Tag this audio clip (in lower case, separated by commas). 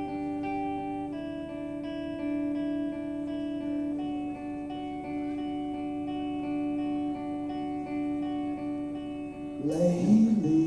music, plucked string instrument, musical instrument, guitar